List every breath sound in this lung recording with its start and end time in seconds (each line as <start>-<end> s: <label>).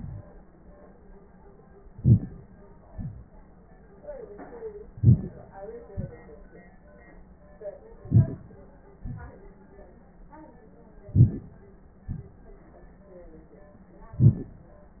1.88-2.47 s: inhalation
2.83-3.28 s: exhalation
4.95-5.54 s: inhalation
5.88-6.42 s: exhalation
8.01-8.69 s: inhalation
9.05-9.56 s: exhalation
11.12-11.75 s: inhalation
12.09-12.70 s: exhalation
14.15-14.72 s: inhalation